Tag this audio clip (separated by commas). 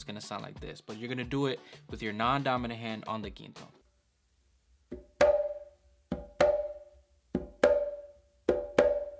playing djembe